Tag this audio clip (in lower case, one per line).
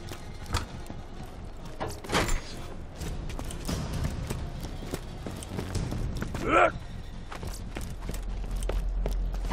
run
music